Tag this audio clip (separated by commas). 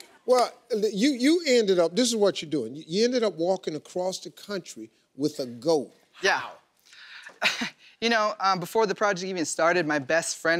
Speech